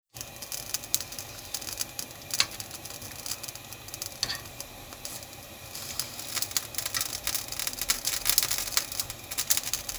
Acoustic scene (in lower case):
kitchen